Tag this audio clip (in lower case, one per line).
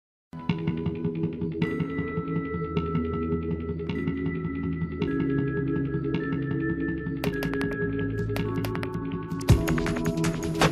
music
theme music